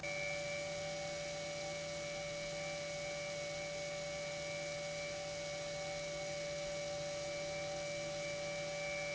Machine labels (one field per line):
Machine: pump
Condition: normal